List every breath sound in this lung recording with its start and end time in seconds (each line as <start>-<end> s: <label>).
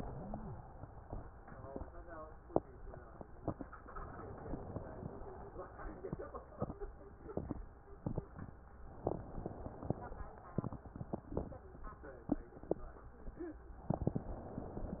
3.97-5.58 s: inhalation
8.96-10.36 s: inhalation